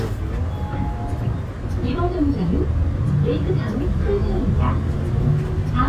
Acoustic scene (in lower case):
bus